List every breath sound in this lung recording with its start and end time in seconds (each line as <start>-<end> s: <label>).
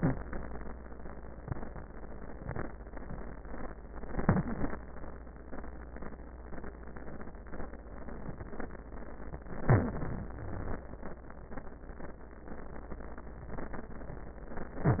4.03-4.83 s: inhalation
9.61-10.32 s: inhalation
10.32-10.82 s: exhalation
10.32-10.82 s: wheeze